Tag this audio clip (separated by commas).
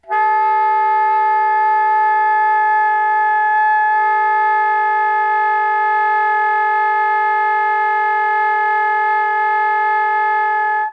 Wind instrument, Music, Musical instrument